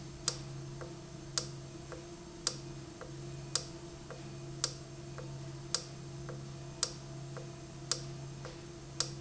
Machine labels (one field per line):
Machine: valve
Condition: normal